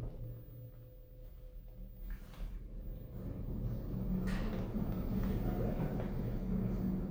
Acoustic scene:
elevator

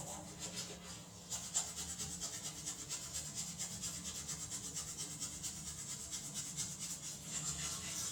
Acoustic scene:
restroom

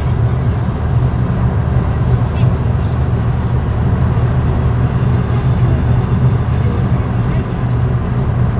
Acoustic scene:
car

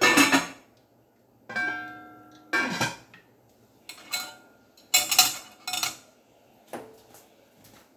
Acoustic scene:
kitchen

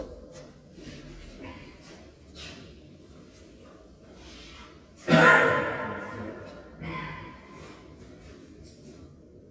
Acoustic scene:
elevator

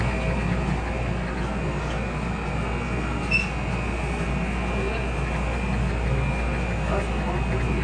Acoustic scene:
subway train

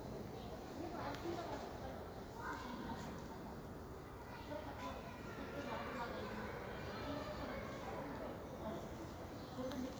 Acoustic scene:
park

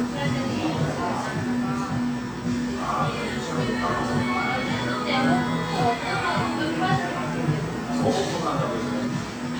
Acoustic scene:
cafe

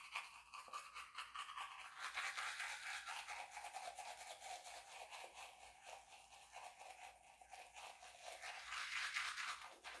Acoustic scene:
restroom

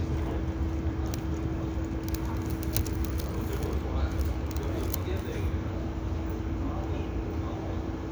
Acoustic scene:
residential area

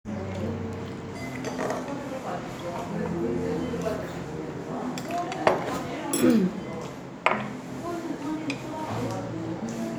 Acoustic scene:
restaurant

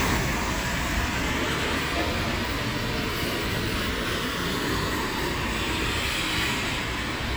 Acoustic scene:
street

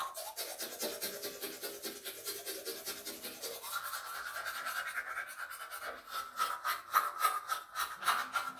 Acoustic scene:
restroom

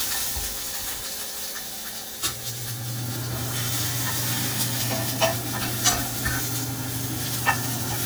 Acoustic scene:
kitchen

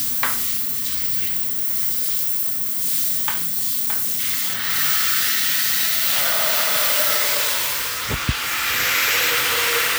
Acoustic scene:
restroom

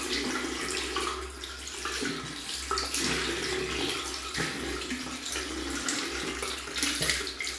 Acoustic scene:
restroom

